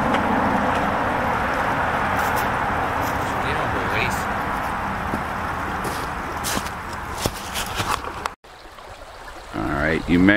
Water running followed by rustling and brief speech